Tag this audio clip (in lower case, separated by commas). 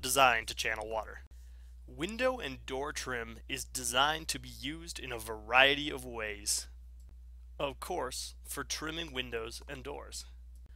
speech